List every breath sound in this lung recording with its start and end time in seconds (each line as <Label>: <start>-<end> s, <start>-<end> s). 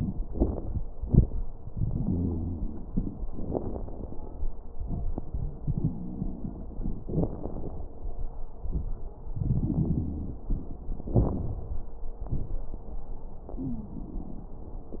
Inhalation: 1.70-3.26 s, 5.64-7.01 s, 9.33-10.87 s
Exhalation: 3.23-4.60 s, 7.06-7.93 s, 11.10-11.96 s
Wheeze: 1.92-2.62 s, 9.64-10.46 s, 13.57-14.02 s
Crackles: 3.23-4.60 s, 5.64-7.01 s, 7.06-7.93 s, 11.10-11.96 s